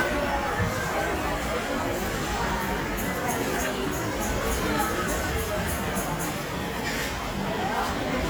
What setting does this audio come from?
crowded indoor space